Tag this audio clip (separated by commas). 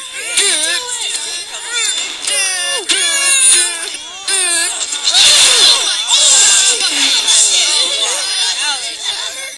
Speech